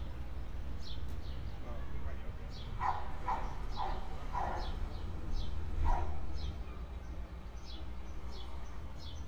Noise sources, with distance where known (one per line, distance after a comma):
person or small group talking
dog barking or whining, near